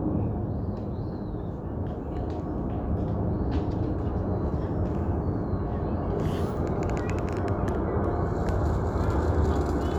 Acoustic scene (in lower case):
residential area